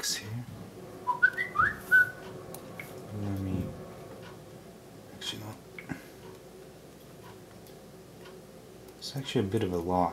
Faint speech and whistling